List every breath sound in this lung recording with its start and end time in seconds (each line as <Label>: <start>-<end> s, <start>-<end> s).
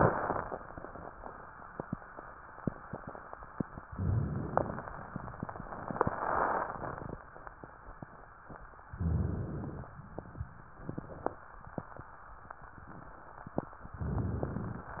Inhalation: 3.87-4.86 s, 8.99-9.98 s
Crackles: 3.87-4.86 s